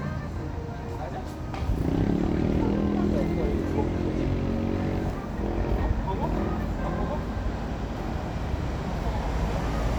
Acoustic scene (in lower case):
street